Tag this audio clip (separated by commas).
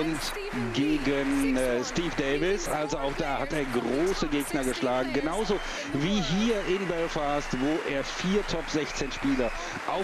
Speech